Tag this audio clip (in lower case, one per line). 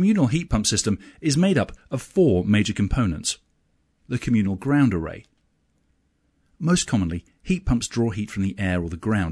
speech